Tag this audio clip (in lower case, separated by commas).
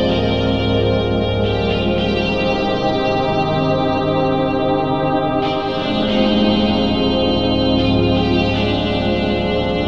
music, ambient music